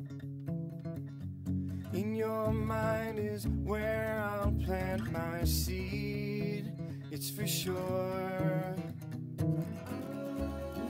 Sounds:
Music

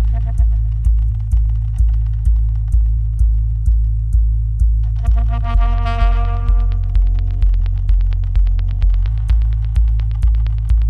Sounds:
Electronic music, Music

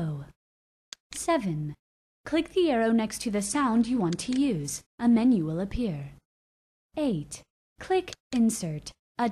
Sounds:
Speech

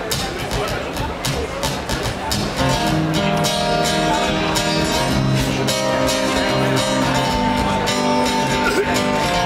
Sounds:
Music

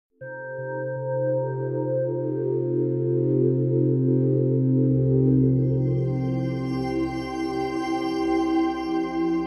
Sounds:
New-age music

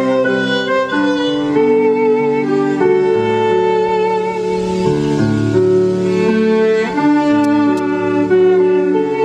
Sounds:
Musical instrument, fiddle, Music

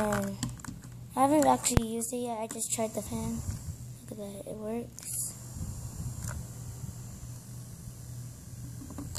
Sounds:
Speech

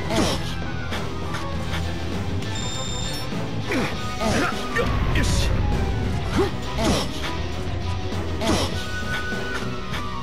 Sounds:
Music, Speech

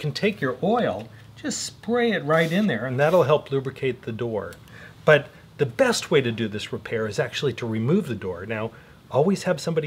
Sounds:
Speech

